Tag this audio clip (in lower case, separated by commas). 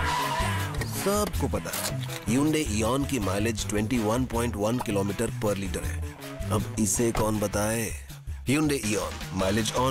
music, speech